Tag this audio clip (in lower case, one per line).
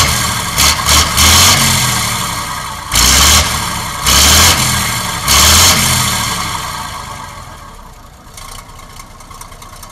vehicle